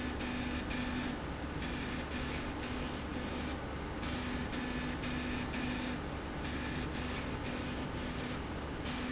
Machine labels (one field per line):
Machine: slide rail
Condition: abnormal